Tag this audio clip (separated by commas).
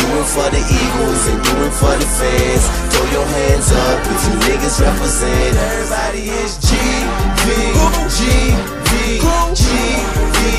Jazz, Soundtrack music, Music, Independent music